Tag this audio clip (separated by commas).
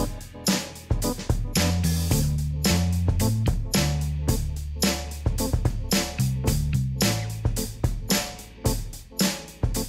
Music